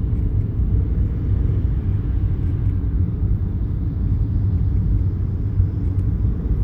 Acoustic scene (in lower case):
car